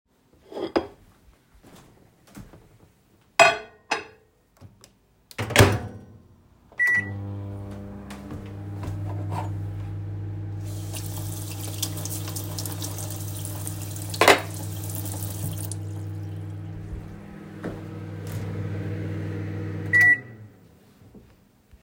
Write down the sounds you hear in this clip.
cutlery and dishes, footsteps, microwave, running water